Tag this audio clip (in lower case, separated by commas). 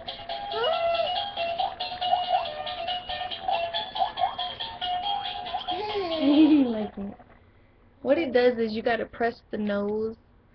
music, speech, inside a small room